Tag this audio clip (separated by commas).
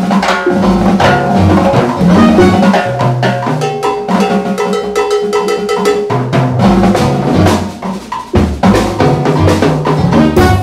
Jazz, Music